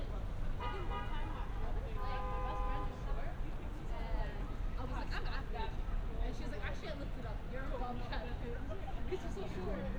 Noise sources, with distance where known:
car horn; person or small group talking, near

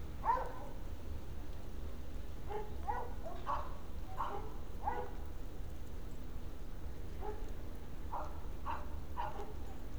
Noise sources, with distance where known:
dog barking or whining, far

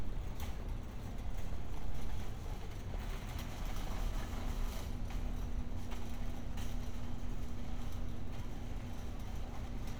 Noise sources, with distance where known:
non-machinery impact

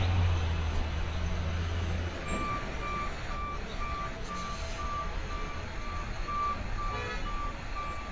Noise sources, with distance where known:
large-sounding engine, near; car horn; reverse beeper, near

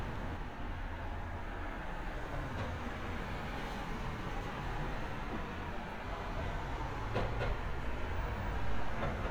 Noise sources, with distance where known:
medium-sounding engine; non-machinery impact, near

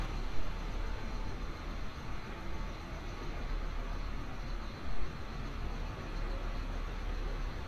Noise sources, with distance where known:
engine of unclear size

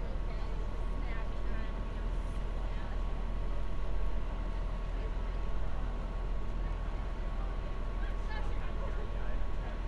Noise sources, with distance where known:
person or small group talking

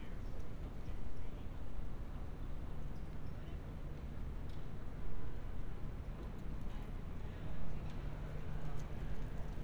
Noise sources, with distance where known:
person or small group talking, far

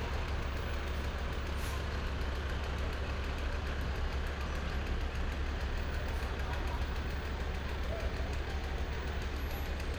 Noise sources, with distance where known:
large-sounding engine, near

